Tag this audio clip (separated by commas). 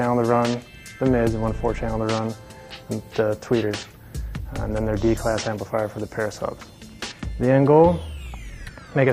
Music, Speech